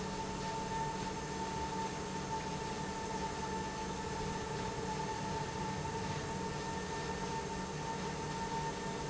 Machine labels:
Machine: pump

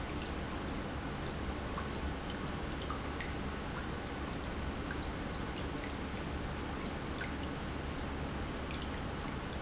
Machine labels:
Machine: pump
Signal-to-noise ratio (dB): -6 dB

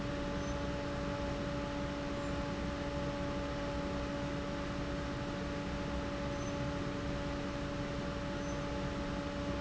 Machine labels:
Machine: fan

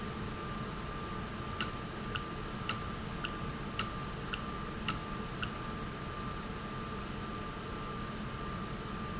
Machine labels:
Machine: valve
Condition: normal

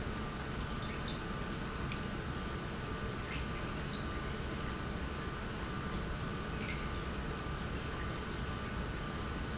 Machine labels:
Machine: pump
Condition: normal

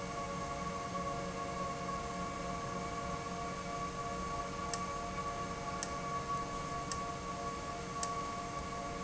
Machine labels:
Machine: valve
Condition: abnormal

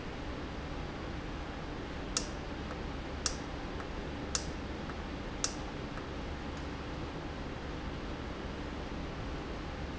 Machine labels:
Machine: valve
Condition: normal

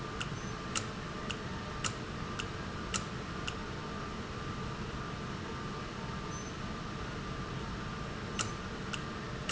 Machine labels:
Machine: valve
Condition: normal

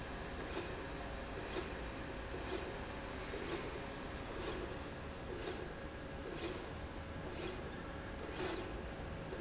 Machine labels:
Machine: slide rail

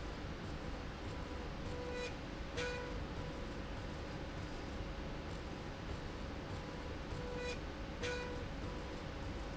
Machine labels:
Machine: slide rail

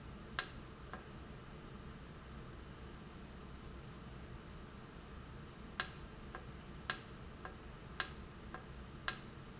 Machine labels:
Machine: valve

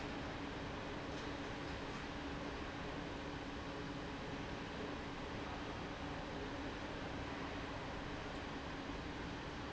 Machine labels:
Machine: fan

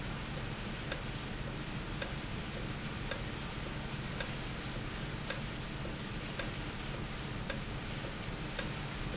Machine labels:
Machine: valve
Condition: normal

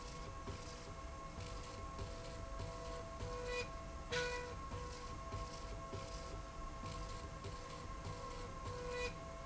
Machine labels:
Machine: slide rail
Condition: normal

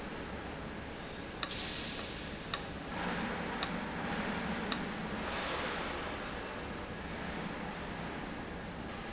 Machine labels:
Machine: valve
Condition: abnormal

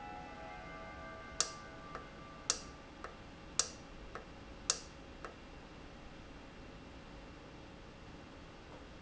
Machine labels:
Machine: valve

